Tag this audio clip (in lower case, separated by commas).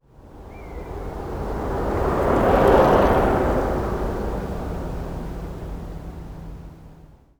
vehicle, bicycle